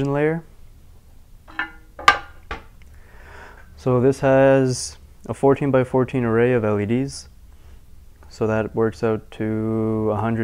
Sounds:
Speech

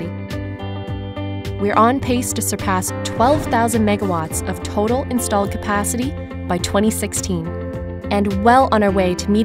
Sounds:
Speech, Music

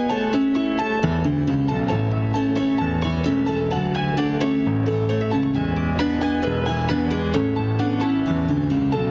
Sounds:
Happy music, Music

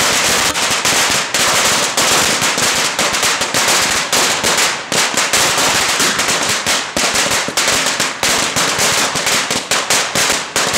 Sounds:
lighting firecrackers

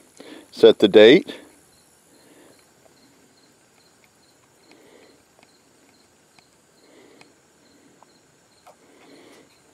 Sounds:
Speech

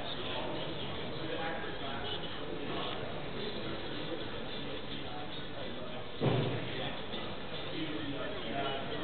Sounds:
Speech, Music

